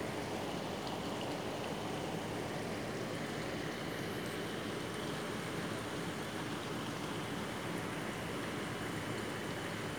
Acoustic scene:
park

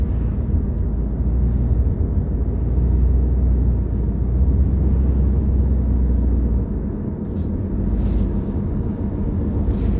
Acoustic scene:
car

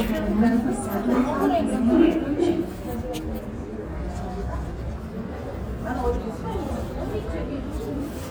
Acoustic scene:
subway station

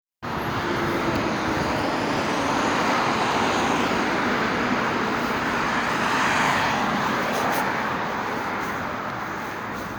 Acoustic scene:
street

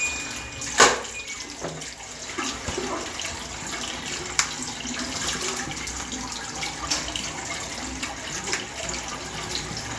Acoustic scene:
restroom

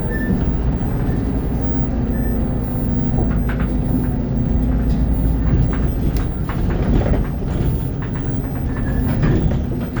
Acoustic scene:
bus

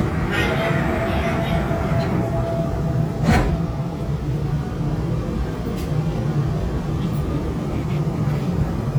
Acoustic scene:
subway train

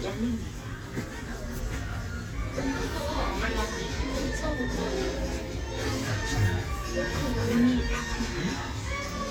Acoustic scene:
elevator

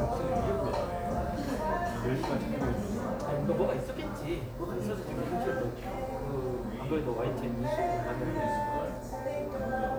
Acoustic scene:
cafe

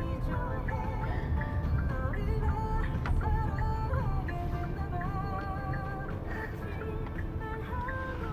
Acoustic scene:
car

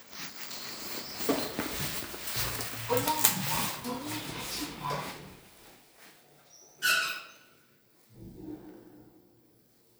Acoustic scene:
elevator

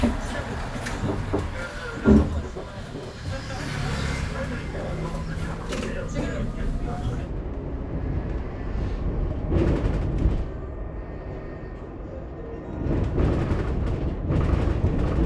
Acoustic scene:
bus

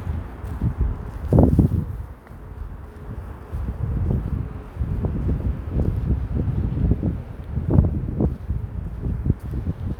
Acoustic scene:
residential area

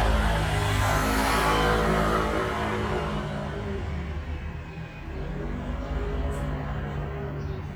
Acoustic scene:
street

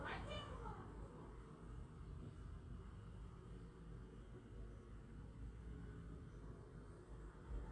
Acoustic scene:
residential area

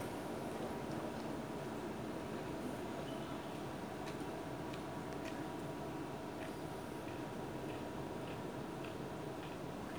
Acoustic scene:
park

